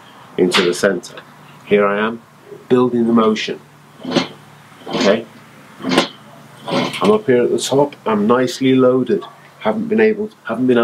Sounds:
Speech

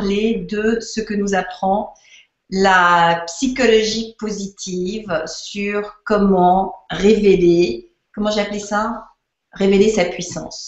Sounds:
Speech

